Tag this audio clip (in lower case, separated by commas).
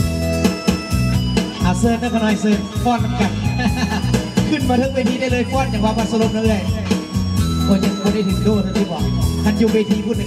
speech, music